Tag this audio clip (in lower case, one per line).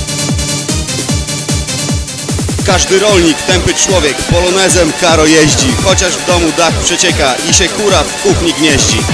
electronic music
speech
music
techno